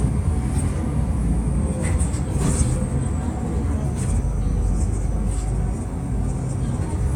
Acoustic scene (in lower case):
bus